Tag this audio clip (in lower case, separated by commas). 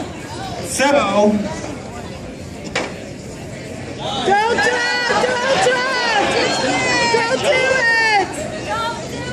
speech